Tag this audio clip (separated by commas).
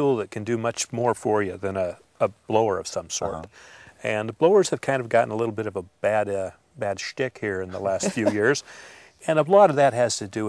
Speech